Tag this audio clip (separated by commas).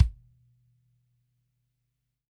Drum, Bass drum, Music, Percussion, Musical instrument